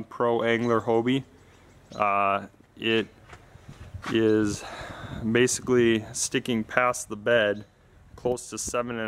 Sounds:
Speech

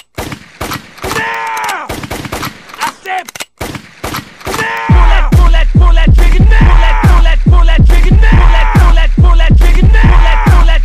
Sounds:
Music, Speech

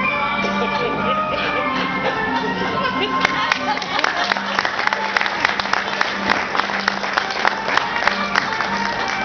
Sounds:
Speech, inside a large room or hall, Music

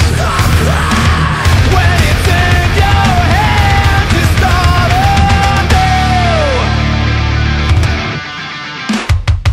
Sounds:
Music

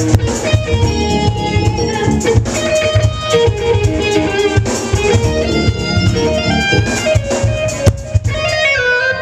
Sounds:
Musical instrument, Strum, Music, Plucked string instrument, Guitar

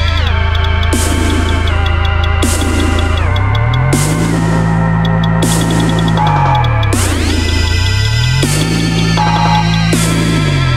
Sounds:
Music, Electronic music, Dubstep

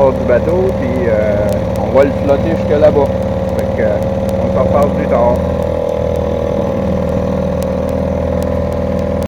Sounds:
Motorboat, Vehicle, Water vehicle, Speech

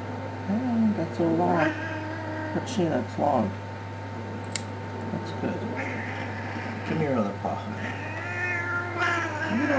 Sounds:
Cat, Animal, Speech, Meow, Domestic animals, Caterwaul

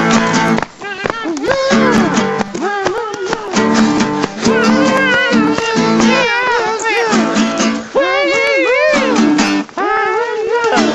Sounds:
Music

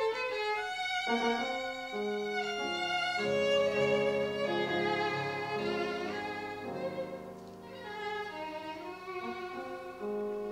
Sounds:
Music, fiddle, Musical instrument

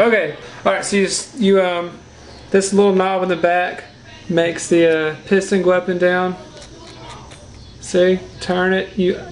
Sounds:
Speech

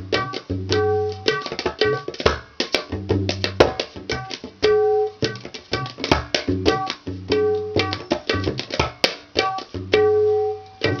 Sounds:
playing tabla

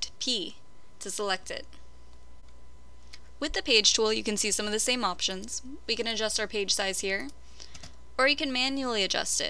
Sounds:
Speech

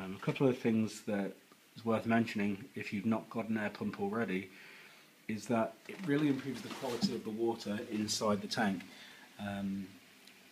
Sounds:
Speech

